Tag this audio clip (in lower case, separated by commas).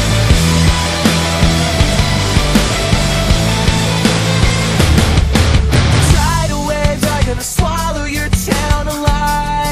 music, pop music, video game music